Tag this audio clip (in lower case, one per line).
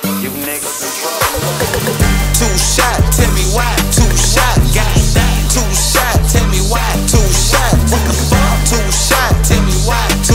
music